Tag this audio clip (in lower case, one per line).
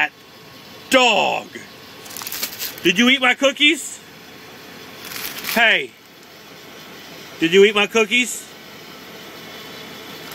speech